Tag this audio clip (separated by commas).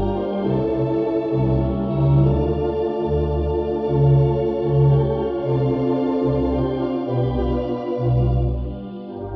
playing hammond organ, Organ, Hammond organ